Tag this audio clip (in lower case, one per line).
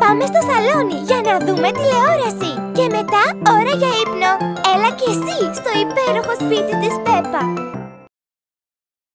speech
music